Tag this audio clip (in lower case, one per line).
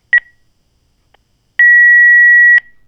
alarm
telephone